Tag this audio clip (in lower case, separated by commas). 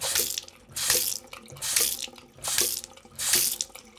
domestic sounds, water tap